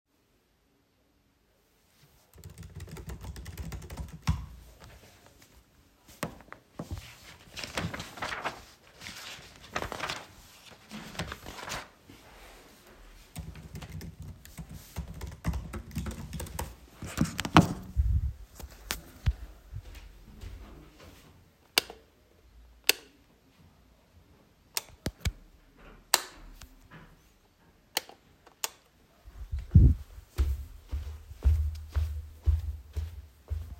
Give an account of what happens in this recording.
Using my laptop I finished writing an essay on my laptop. Then i walked to the light switch and turned it off.